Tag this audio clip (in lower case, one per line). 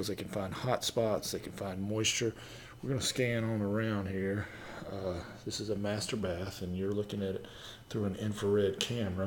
speech